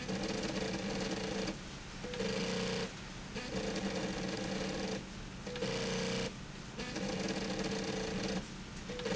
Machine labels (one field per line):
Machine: slide rail